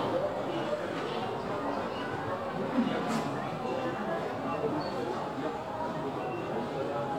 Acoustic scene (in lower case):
crowded indoor space